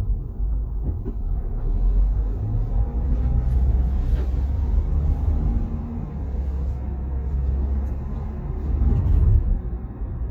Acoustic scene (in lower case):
car